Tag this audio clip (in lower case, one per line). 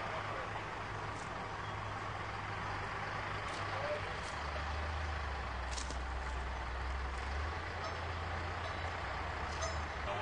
car
vehicle